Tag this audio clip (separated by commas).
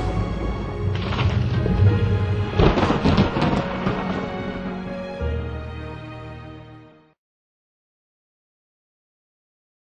Music